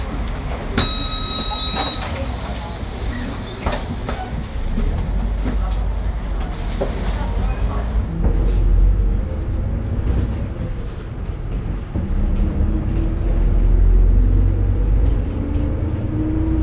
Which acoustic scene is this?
bus